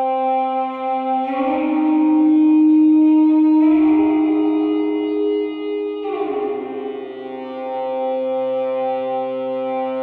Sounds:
Effects unit

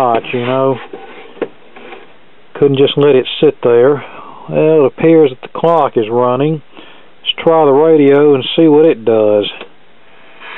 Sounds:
Speech

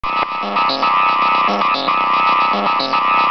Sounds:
Music, Sampler

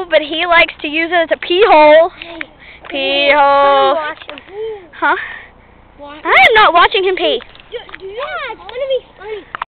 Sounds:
Speech

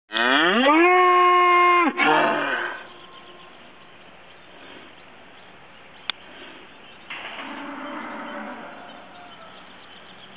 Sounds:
bull bellowing

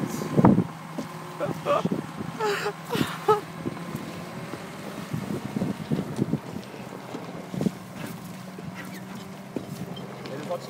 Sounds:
Stream

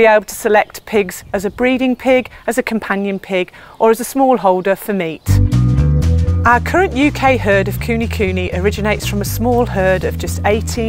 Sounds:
Speech, Music

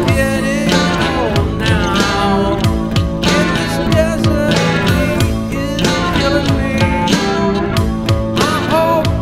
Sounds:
Music

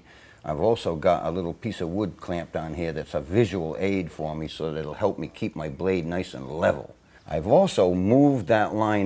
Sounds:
Speech

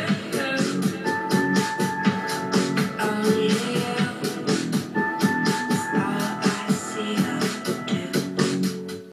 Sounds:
Music

